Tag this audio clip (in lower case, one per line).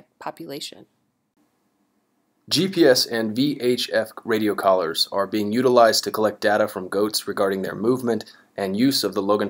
speech